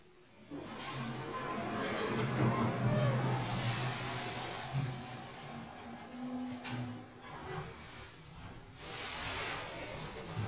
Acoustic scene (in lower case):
elevator